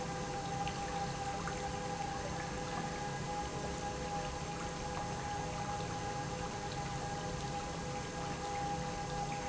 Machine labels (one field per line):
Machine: pump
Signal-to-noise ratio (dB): -6 dB